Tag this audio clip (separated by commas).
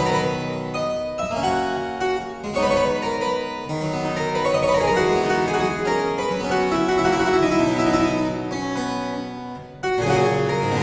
playing harpsichord